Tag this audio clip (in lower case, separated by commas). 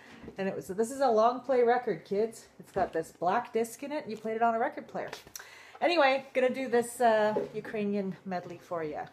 speech